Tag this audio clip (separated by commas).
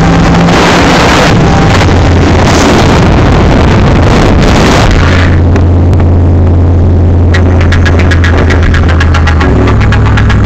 Vehicle, Motor vehicle (road), Music, Car